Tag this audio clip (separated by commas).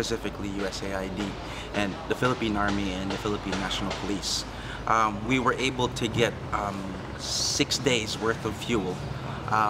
Speech